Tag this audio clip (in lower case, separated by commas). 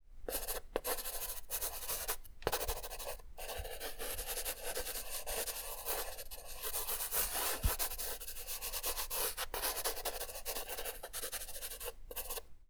writing, domestic sounds